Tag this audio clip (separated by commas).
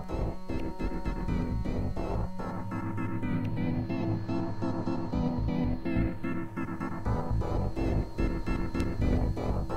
Music